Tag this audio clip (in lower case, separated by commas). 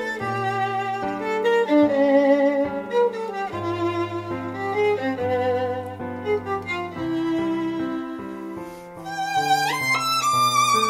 violin, music, musical instrument